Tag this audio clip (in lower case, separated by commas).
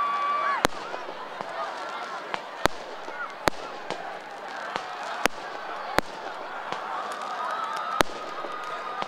fireworks